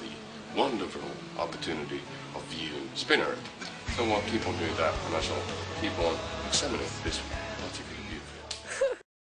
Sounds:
Speech, Music

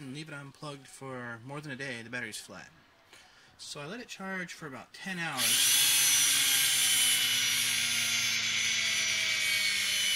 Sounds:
Power tool, Tools

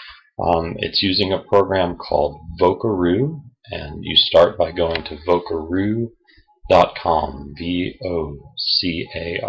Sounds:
Speech

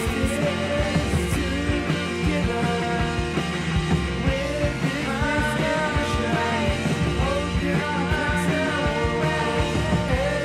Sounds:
Music

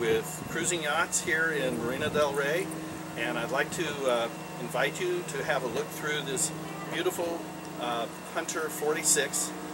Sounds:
Speech

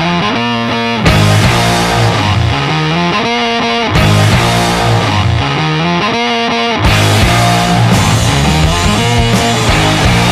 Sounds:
Music, Punk rock

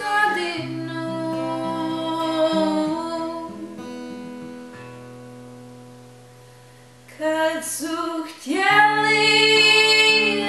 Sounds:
Music, Singing, inside a large room or hall

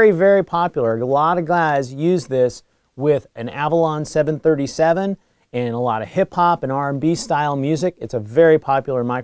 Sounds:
Speech

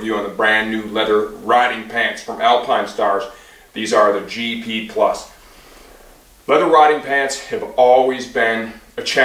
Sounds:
Speech

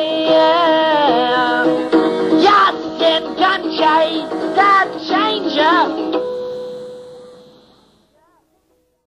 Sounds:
Music

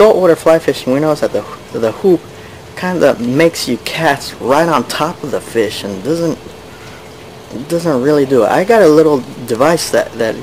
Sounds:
Speech

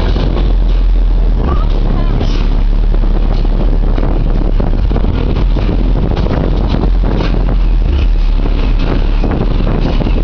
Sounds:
Speech, Vehicle, Car

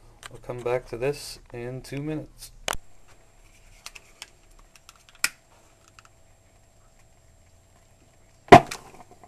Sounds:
Speech, inside a small room

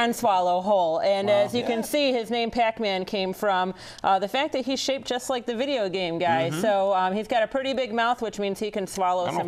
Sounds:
Speech

